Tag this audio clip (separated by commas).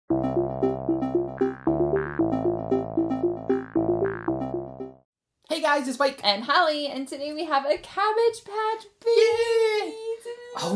Synthesizer